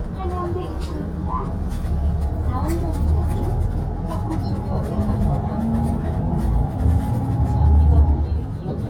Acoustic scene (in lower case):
bus